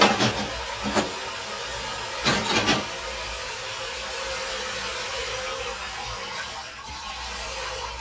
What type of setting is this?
kitchen